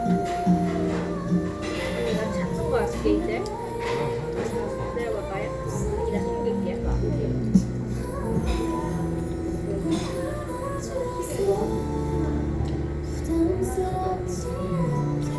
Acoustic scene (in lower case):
crowded indoor space